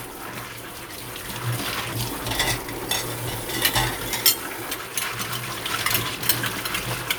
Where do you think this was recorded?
in a kitchen